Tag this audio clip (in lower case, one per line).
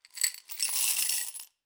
home sounds
glass
coin (dropping)